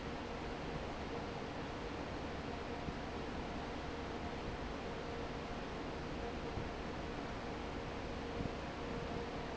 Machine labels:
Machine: fan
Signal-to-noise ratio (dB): 0 dB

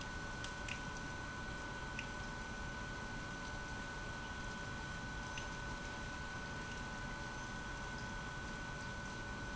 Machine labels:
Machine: pump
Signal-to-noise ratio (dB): 6 dB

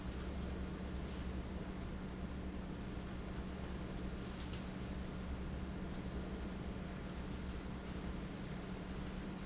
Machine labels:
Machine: fan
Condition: abnormal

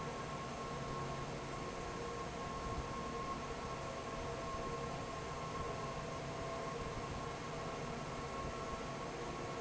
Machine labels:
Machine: fan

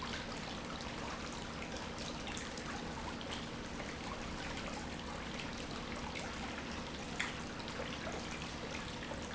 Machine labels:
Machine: pump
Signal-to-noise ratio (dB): 0 dB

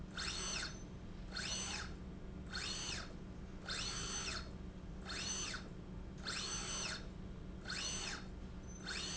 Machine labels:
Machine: slide rail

